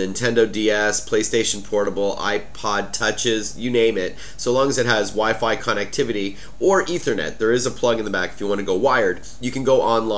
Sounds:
speech

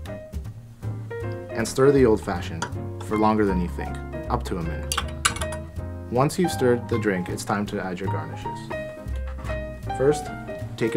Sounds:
glass
speech
music

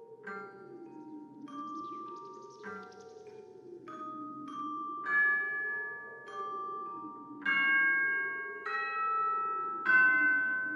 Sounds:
insect
music

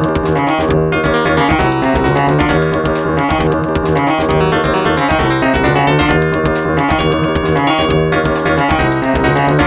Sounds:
music

